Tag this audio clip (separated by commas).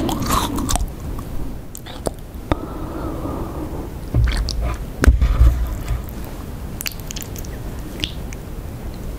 people slurping